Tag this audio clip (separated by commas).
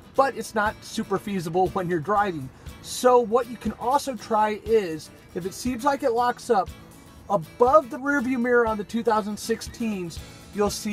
Speech, Music